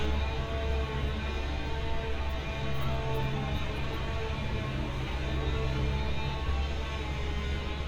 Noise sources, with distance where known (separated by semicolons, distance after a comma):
unidentified powered saw